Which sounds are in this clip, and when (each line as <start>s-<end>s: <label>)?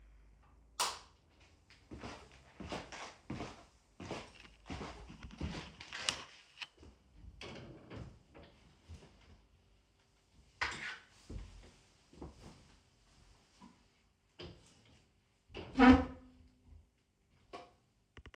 0.7s-1.2s: light switch
1.7s-7.0s: footsteps
7.4s-8.6s: wardrobe or drawer
15.5s-16.3s: wardrobe or drawer
17.3s-17.9s: light switch